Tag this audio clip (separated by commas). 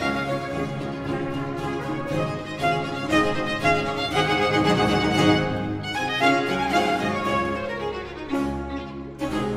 Musical instrument, Trumpet, fiddle, Music, Cello